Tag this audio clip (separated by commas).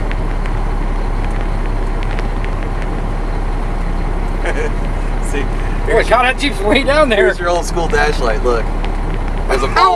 Speech, outside, urban or man-made, Vehicle